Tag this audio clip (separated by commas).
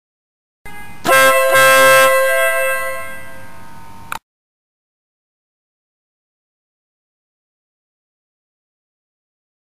car horn